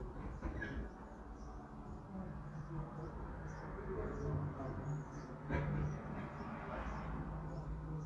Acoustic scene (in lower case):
residential area